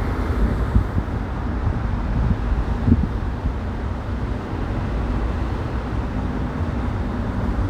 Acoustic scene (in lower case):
street